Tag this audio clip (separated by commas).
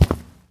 Walk